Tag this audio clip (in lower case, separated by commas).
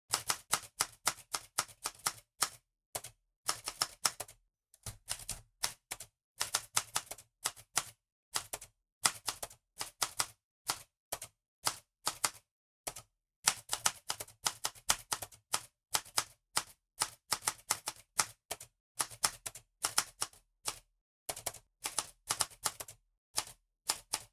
home sounds, typing, typewriter